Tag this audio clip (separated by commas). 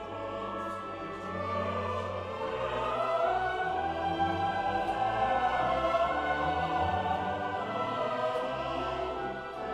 Music